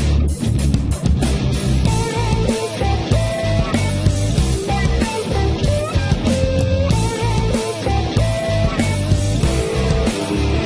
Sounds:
music

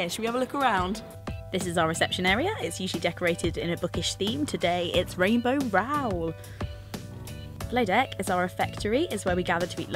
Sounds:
speech
music

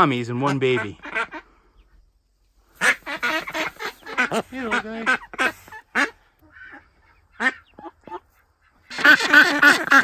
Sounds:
duck quacking

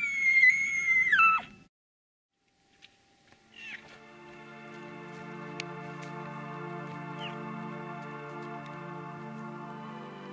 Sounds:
elk bugling

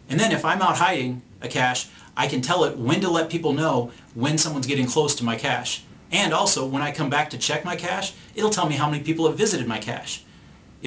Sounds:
speech
inside a small room

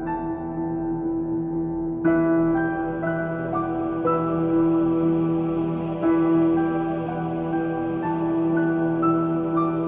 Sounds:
music
soul music

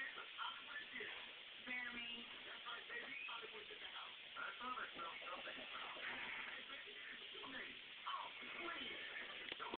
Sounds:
speech

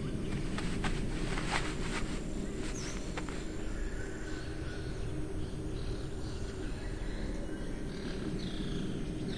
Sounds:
bird

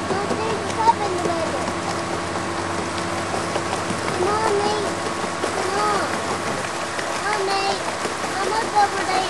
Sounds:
speech
stream

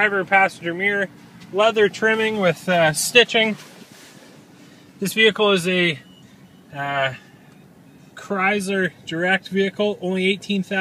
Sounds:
speech

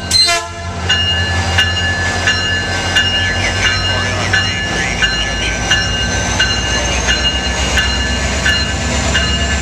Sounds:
vehicle
train
speech
railroad car

